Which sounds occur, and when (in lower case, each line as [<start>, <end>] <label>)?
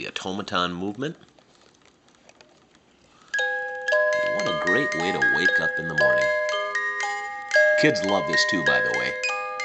[0.00, 1.19] male speech
[0.00, 3.33] background noise
[0.74, 1.84] generic impact sounds
[1.28, 1.74] breathing
[2.00, 2.75] generic impact sounds
[2.85, 3.27] generic impact sounds
[2.94, 3.41] breathing
[3.23, 9.64] alarm clock
[3.56, 3.78] generic impact sounds
[4.10, 6.31] male speech
[7.72, 9.21] male speech